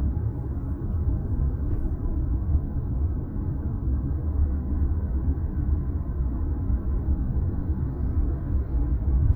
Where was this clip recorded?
in a car